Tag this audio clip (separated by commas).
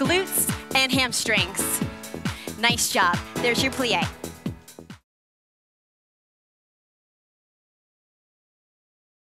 Speech, Music